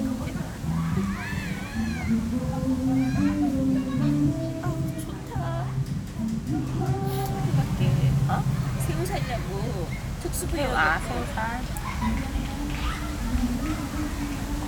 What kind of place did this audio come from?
park